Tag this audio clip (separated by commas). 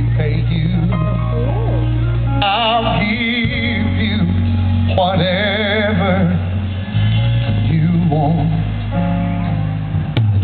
Music, Male singing